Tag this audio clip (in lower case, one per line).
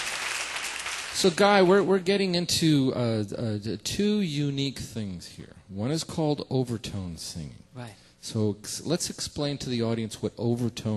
speech